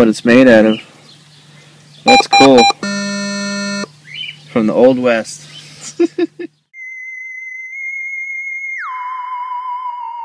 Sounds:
Music, Speech

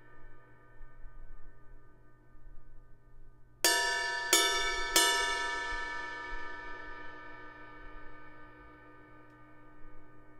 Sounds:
Music, Ping

